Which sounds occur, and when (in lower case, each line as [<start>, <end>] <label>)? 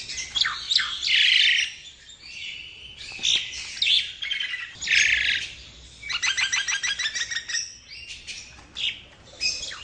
[0.00, 1.75] tweet
[0.01, 9.83] background noise
[2.17, 5.52] tweet
[6.05, 7.76] tweet
[7.83, 8.52] tweet
[8.73, 8.98] tweet
[9.25, 9.83] tweet